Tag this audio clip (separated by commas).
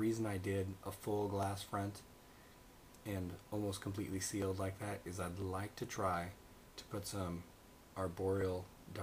inside a small room, Speech